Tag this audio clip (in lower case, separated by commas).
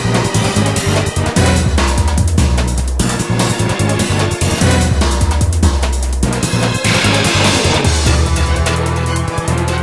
music